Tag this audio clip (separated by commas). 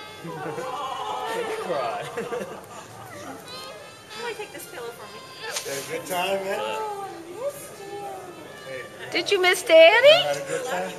infant cry, Speech, Music